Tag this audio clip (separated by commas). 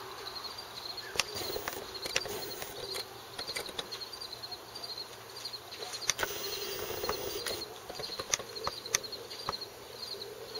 Bird